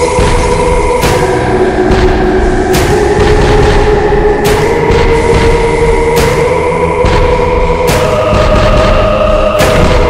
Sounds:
Music

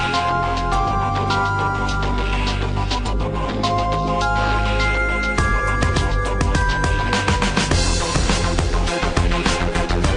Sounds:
Music, Video game music

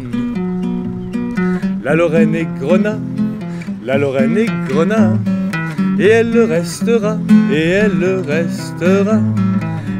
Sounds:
Music

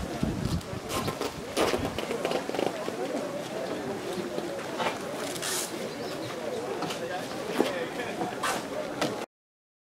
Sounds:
Speech

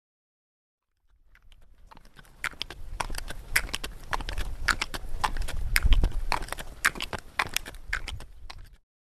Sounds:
outside, rural or natural

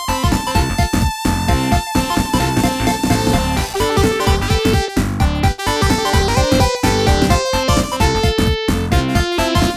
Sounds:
Music

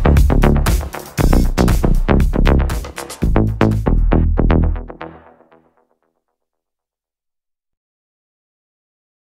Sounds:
Music, House music

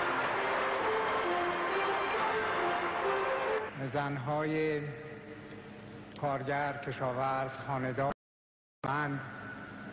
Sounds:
Music, Male speech, Speech, Narration

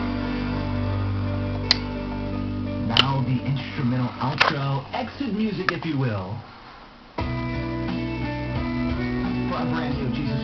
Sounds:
inside a small room, Music, Speech

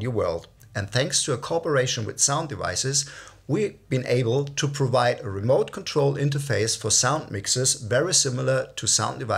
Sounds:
Speech

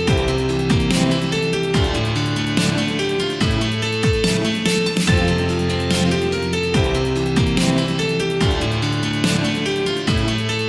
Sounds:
Music, Dubstep, Electronic music

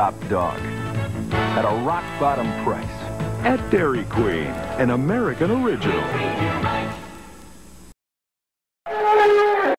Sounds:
Speech, Music

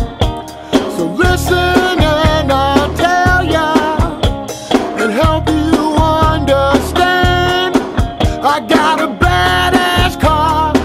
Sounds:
Music

